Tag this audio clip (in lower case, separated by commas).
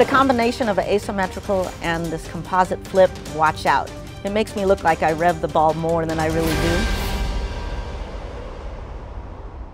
speech, music